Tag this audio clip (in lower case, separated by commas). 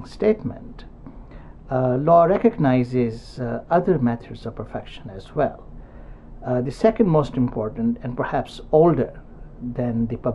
speech